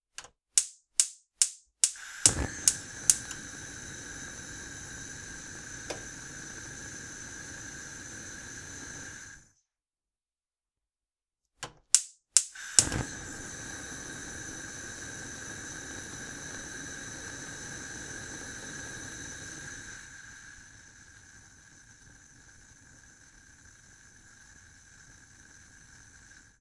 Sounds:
Fire

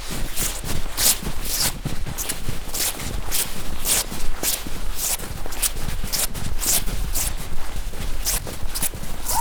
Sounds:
footsteps

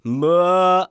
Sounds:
Human voice, Male singing, Singing

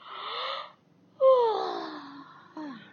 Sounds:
Human voice

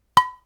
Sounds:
dishes, pots and pans, Domestic sounds

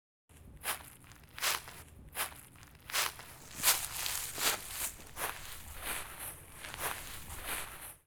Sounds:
footsteps

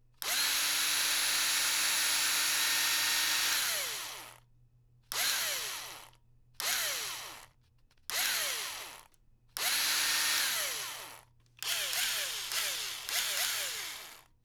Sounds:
Power tool, Drill, Tools

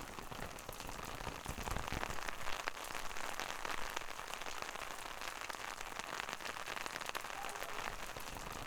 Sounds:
Rain, Water

